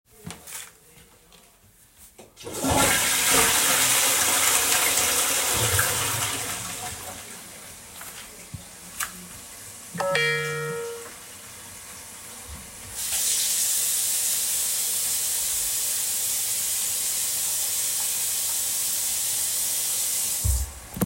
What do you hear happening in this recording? First of all, the toilet had been flushed. After that, a phone notification rang on the phone, and finally the water tap turned on.